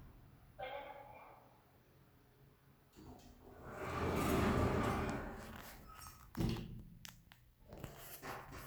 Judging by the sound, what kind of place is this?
elevator